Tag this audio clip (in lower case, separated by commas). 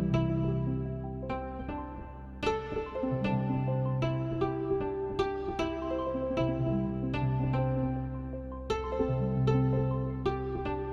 music, harp